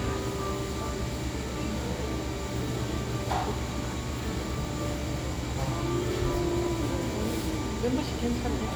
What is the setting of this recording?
cafe